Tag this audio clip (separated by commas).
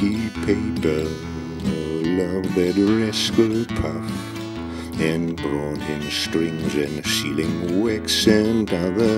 Music